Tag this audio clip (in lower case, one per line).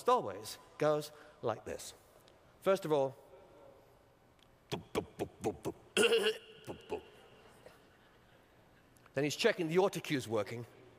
narration
man speaking
speech